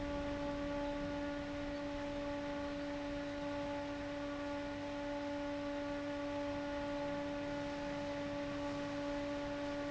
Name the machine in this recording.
fan